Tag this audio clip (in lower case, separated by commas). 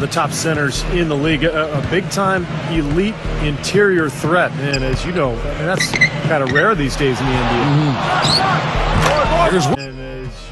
music, speech